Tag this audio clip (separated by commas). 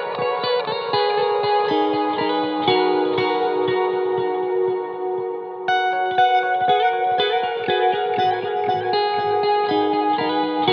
Music, Effects unit